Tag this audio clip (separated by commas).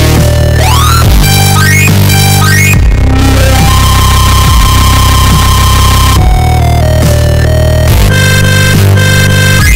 Dubstep, Music, Electronic music